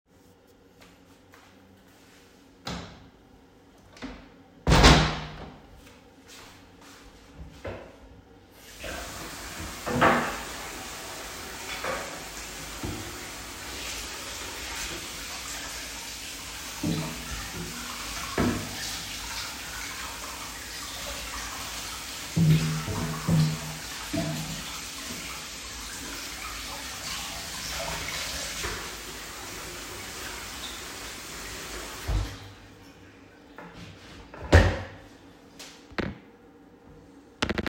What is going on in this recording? I closed the kitchen door. Then I went to the sink. There I washed the cutting boards and a pot under running water.